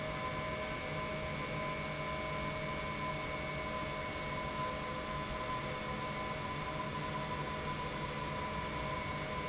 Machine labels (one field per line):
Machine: pump